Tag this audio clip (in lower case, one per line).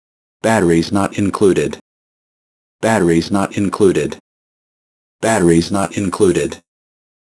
respiratory sounds
breathing